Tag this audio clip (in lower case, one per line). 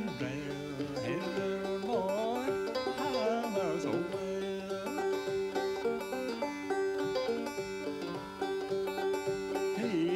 playing banjo